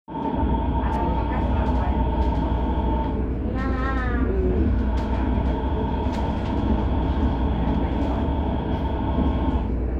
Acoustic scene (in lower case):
subway train